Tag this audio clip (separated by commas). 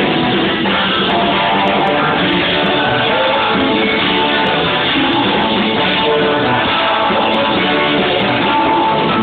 Music, Singing